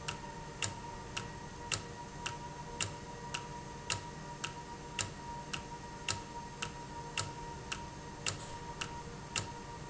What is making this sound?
valve